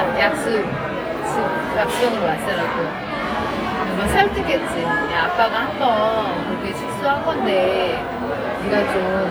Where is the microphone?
in a crowded indoor space